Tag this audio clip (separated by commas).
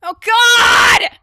Shout, Yell, Human voice